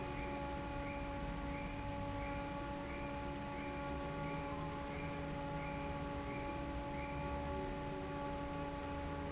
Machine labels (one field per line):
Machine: fan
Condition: normal